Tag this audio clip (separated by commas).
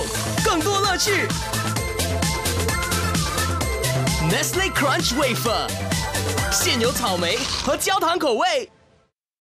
Speech, Music